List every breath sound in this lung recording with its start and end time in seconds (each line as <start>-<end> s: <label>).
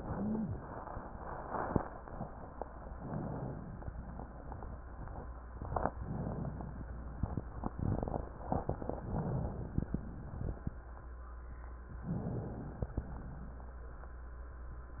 2.94-3.92 s: inhalation
5.92-6.89 s: inhalation
5.92-6.89 s: crackles
9.05-10.14 s: inhalation
9.05-10.14 s: crackles
12.06-12.97 s: inhalation
12.06-12.97 s: crackles